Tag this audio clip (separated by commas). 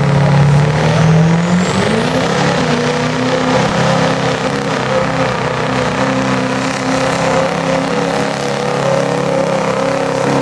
Vehicle, Truck